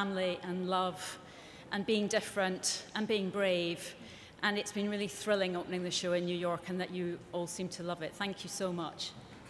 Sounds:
narration
speech
female speech

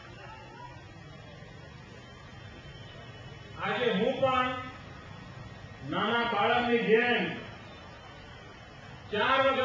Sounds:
speech
monologue
male speech

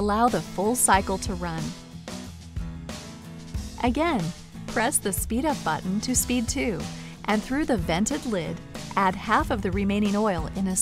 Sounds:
music
speech

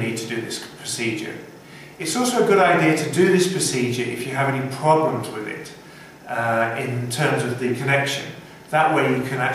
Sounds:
speech

